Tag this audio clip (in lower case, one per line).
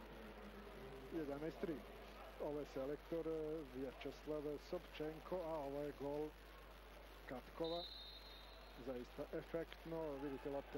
speech